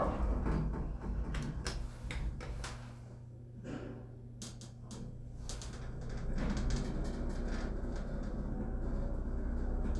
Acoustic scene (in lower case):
elevator